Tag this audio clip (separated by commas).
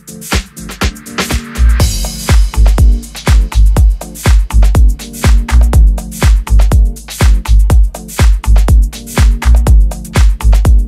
Rhythm and blues, Dance music, Music